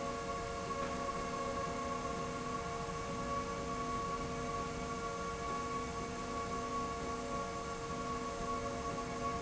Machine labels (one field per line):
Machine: slide rail